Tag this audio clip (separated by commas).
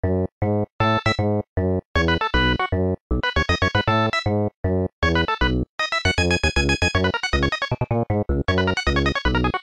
Music